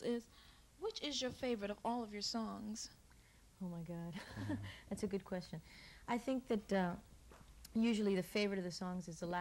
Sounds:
Speech

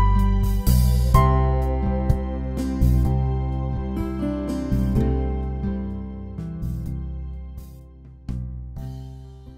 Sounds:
Music

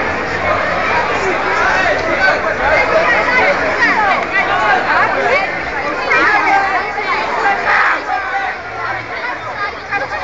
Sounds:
Speech

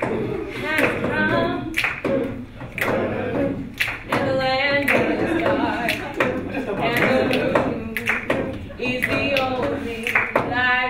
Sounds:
Female singing

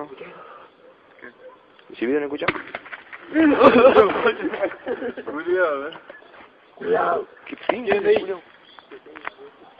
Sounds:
Speech

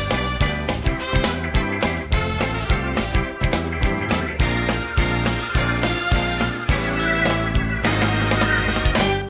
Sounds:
Music

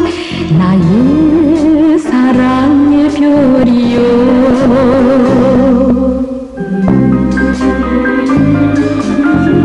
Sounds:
Blues, Soundtrack music, Music

